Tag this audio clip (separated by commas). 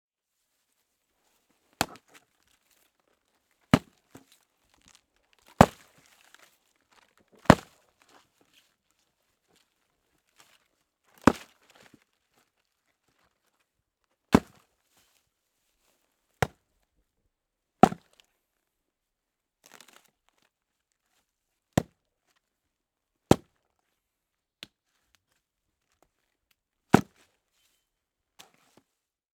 Wood